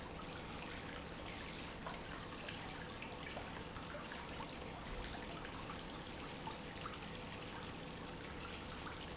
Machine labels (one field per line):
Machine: pump